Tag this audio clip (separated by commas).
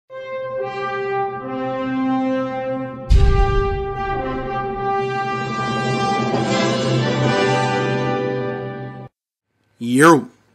Music, Brass instrument, Speech